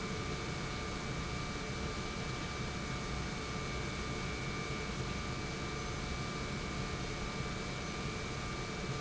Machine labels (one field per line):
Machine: pump